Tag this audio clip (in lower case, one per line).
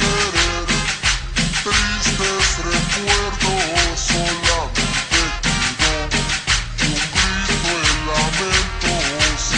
music